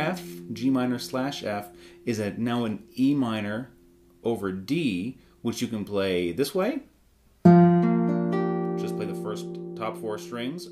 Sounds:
speech, musical instrument, music, strum, guitar, acoustic guitar

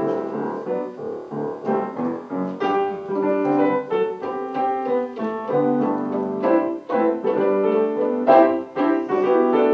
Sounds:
music, musical instrument, piano, classical music, violin

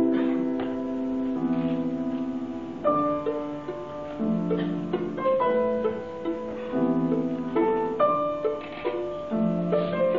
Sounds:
bowed string instrument, fiddle

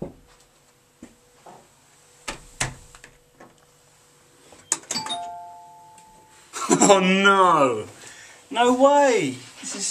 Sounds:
inside a small room, speech, doorbell

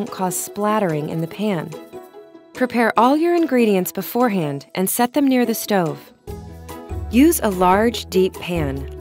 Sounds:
speech, music

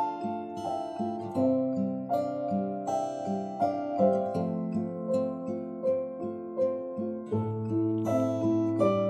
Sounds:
music, guitar, acoustic guitar, musical instrument

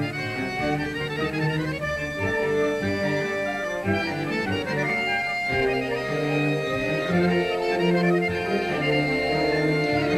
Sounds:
orchestra, accordion, music

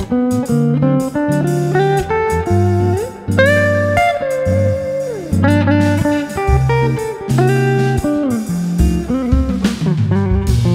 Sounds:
plucked string instrument, music, steel guitar, musical instrument, guitar

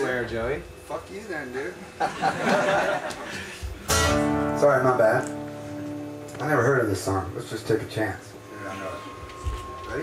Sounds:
music, speech, musical instrument, punk rock

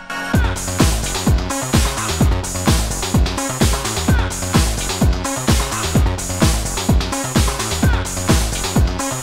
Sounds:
techno, music, electronic music

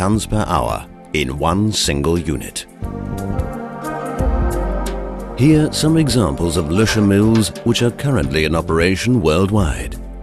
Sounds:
music, speech

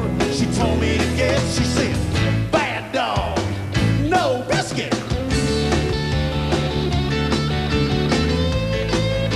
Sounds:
music

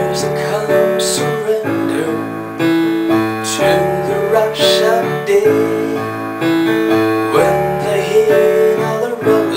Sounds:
male singing, music

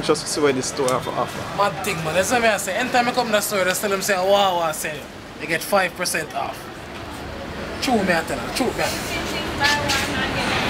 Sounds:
speech

